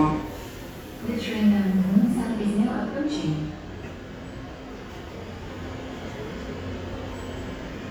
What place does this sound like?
subway station